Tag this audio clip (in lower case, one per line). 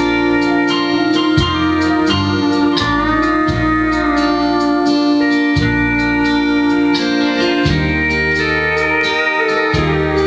slide guitar
music